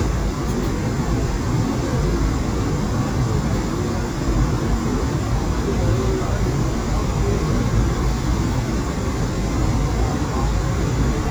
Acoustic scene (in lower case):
subway train